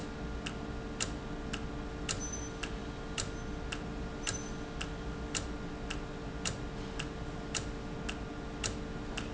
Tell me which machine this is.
valve